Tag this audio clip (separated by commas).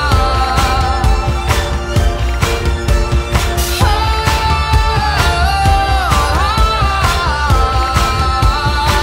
Music